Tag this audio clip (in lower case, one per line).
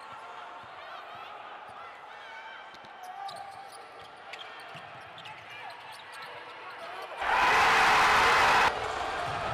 basketball bounce